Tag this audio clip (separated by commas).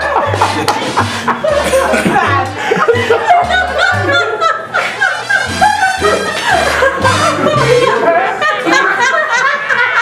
Speech, Music